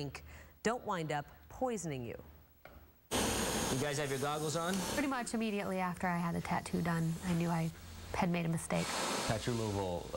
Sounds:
speech

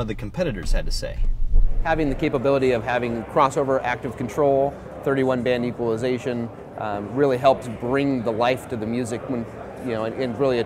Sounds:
speech

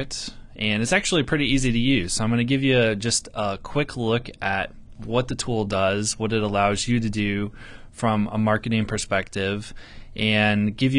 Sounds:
speech

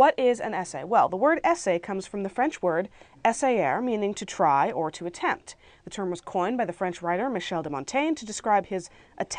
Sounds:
speech

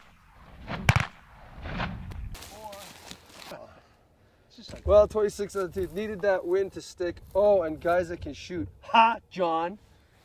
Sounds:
speech

